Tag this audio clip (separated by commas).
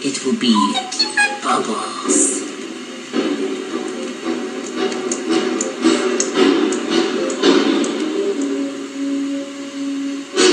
Television, Speech, Music